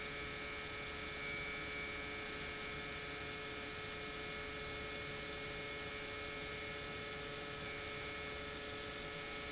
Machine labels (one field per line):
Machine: pump